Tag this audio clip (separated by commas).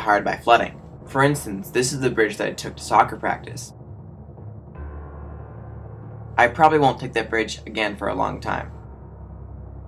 Speech, Music